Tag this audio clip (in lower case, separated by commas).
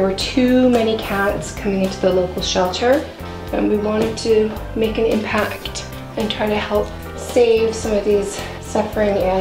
music, speech